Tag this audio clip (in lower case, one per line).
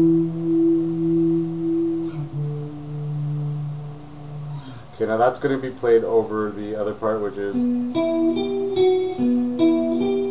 speech
plucked string instrument
music
strum
guitar
acoustic guitar
musical instrument